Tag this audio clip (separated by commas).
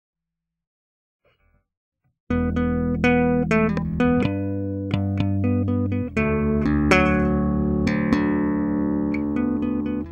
Musical instrument, Electronic tuner, Plucked string instrument, Music, Electric guitar, Guitar